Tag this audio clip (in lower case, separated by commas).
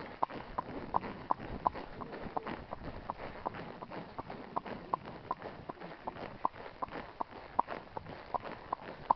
animal, horse, clip-clop, horse clip-clop